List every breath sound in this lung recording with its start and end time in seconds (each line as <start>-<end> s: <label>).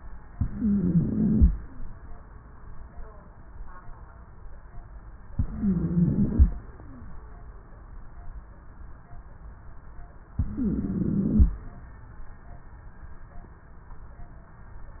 0.28-1.47 s: inhalation
0.28-1.47 s: wheeze
5.31-6.50 s: inhalation
5.31-6.50 s: wheeze
10.34-11.53 s: inhalation
10.34-11.53 s: wheeze